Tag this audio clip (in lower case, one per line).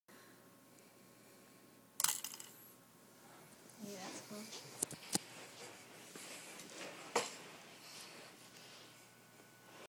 speech